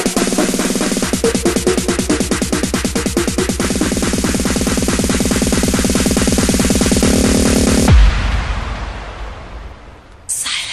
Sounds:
music
electronic dance music
electronic music

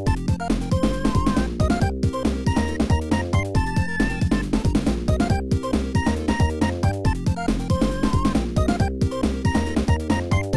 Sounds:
music
background music

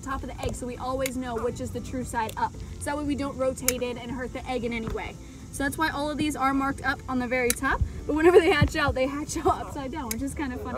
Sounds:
alligators

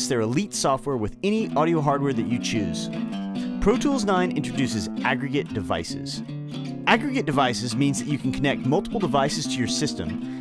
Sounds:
music
speech

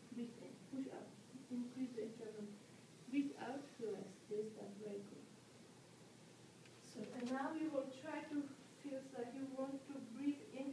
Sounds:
speech

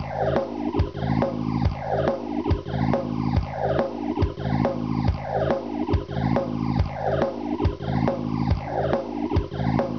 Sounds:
music
sampler

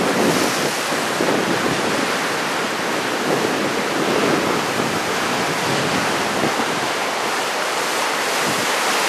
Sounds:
surf
ocean
wind noise (microphone)
wind

